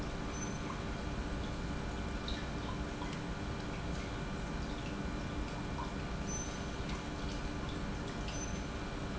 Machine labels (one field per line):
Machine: pump